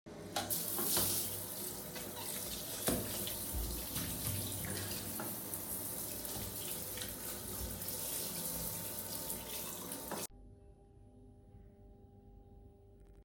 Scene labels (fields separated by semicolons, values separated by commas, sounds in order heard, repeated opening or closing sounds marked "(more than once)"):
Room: bathroom; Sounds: running water